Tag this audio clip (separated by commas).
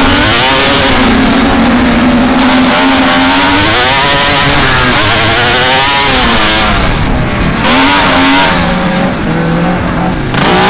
Vehicle, revving